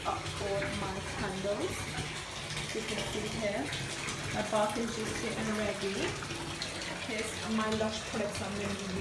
A bathtub fills with water as a woman narrates